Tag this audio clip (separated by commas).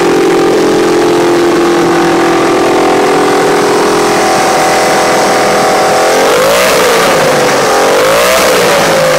vroom, Vehicle